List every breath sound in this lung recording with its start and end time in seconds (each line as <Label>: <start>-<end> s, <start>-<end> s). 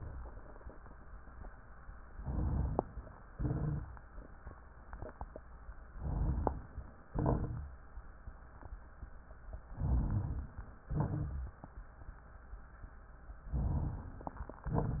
Inhalation: 2.16-2.99 s, 5.96-6.87 s, 9.68-10.70 s, 13.45-14.44 s
Exhalation: 3.32-4.01 s, 7.09-7.76 s, 10.85-11.80 s
Crackles: 7.09-7.76 s, 10.85-11.80 s